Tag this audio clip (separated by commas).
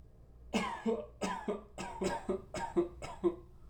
Cough, Respiratory sounds